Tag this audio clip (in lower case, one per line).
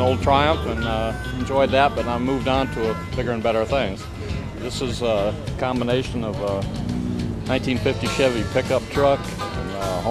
speech
music